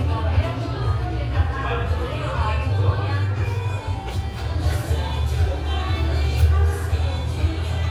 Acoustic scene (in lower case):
cafe